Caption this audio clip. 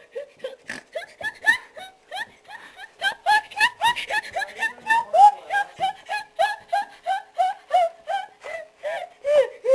A woman laughs loudly